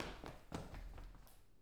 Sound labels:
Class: footsteps; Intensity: high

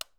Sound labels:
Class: switch; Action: being turned off; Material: plastic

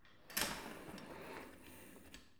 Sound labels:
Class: furniture moving; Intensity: medium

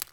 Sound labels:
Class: object falling; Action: being thrown; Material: plastic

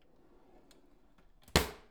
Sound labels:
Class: drawer; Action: closing; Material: wooden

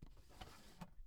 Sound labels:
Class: drawer; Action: closing; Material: plastic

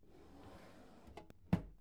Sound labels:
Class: drawer; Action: closing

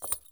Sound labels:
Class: object falling; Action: being thrown; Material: metal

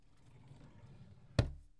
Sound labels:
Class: drawer; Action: closing; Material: wooden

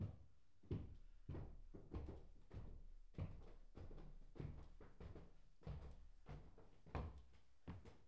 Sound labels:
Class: footsteps; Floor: wooden floor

